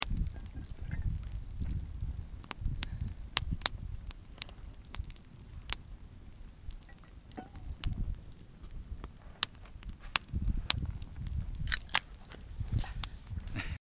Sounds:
Fire

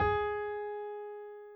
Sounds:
Piano, Musical instrument, Music, Keyboard (musical)

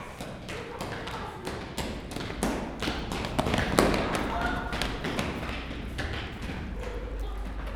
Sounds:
Run

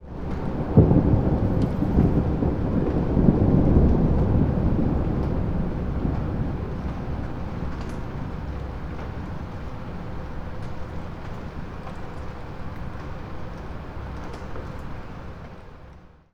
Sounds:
Thunderstorm, Thunder

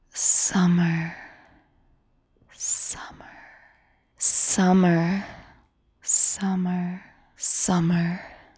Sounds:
Human voice, Whispering

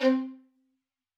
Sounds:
Bowed string instrument, Music, Musical instrument

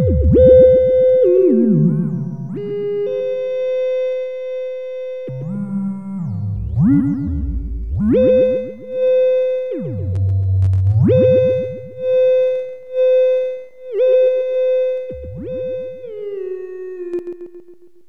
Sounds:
Music, Musical instrument

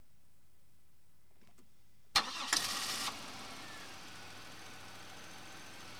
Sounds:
Engine starting, Vehicle, Engine, Idling, Car, Motor vehicle (road)

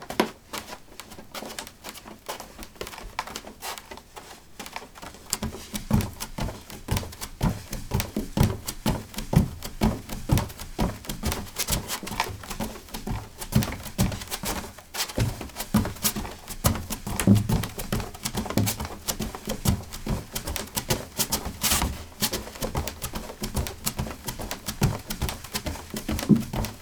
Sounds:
Run

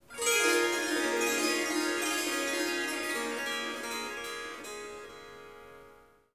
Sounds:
Music, Harp, Musical instrument

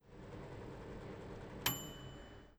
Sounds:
home sounds, Microwave oven

